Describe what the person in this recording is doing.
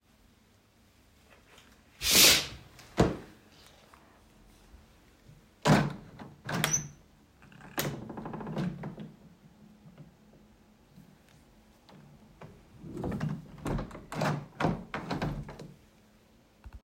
I walked to the window, moved the curtain aside, opened the window, and then closed it again.